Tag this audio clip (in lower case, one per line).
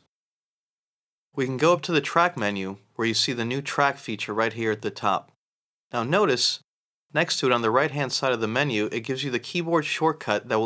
speech